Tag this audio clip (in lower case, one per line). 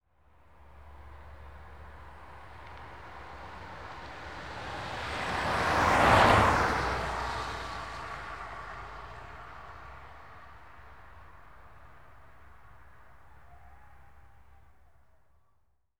vehicle